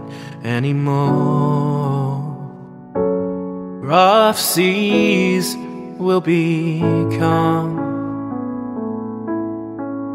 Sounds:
music

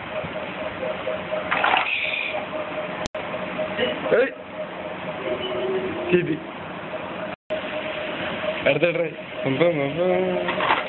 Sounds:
speech

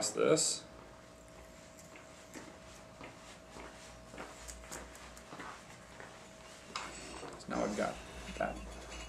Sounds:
speech

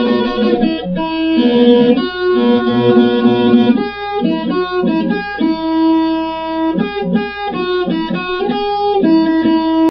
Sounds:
musical instrument
electric guitar
guitar
music
plucked string instrument

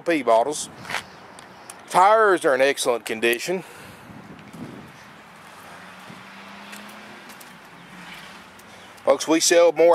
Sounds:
outside, urban or man-made
speech
vehicle

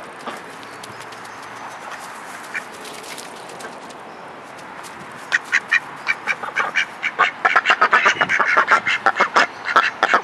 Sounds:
duck quacking

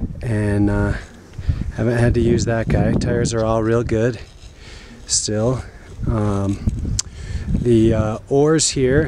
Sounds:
speech

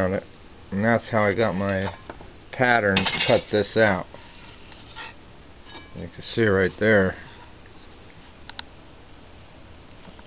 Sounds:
speech
inside a small room

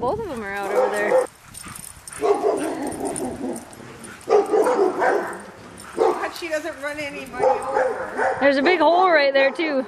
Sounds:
bark
speech
animal
dog
pets

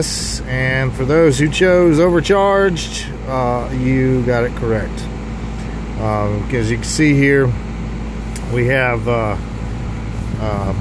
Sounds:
speech

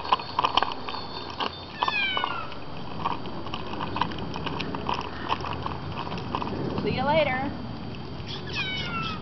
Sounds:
speech

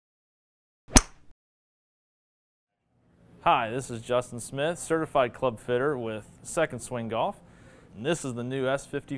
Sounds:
speech

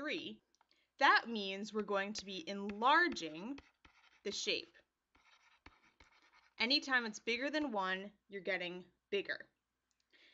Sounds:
speech

